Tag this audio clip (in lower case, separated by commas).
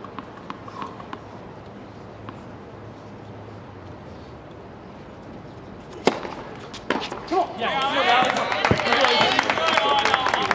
outside, urban or man-made, speech